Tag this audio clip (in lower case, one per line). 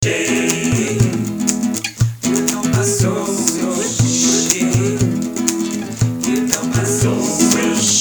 music
guitar
plucked string instrument
acoustic guitar
human voice
musical instrument